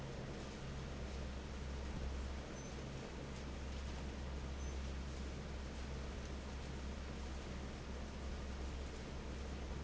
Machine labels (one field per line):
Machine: fan